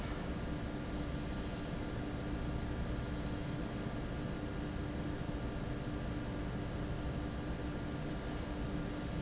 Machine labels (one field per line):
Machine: fan